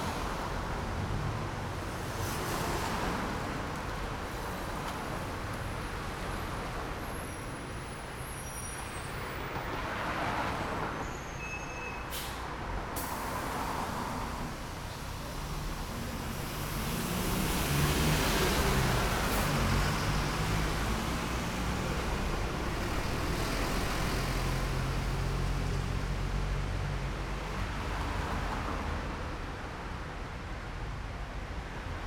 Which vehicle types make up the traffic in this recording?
car, bus